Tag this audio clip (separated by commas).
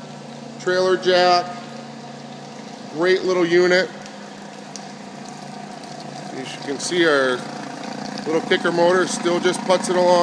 Vehicle, Speech, Water vehicle